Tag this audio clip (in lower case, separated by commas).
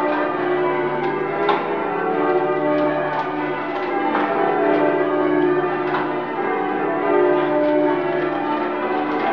church bell ringing